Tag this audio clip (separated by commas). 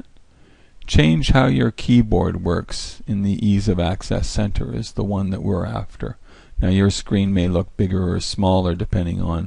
Speech